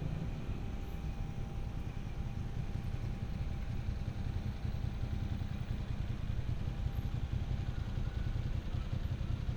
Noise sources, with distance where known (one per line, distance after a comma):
small-sounding engine